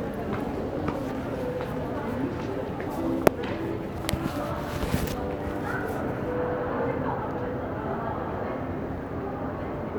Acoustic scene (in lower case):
crowded indoor space